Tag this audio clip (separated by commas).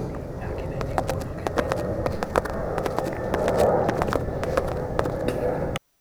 livestock, Animal